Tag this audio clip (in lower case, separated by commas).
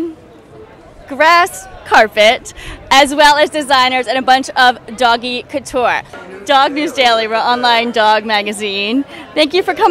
speech